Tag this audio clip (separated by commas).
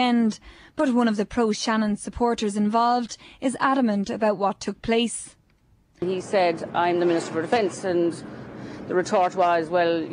Speech